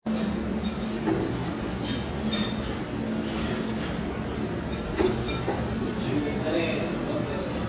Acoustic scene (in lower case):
restaurant